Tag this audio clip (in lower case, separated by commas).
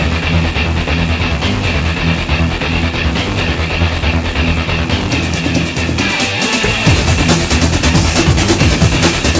music